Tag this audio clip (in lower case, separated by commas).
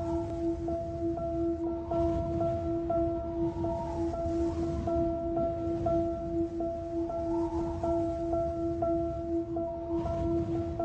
music